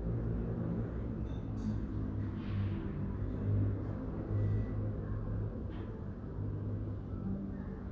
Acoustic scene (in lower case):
residential area